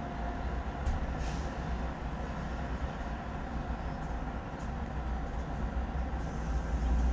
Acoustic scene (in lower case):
residential area